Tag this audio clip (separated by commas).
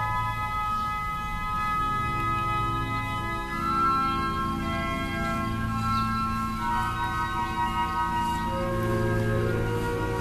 Music